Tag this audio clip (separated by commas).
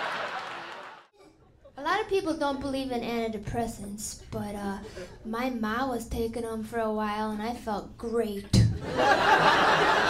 Speech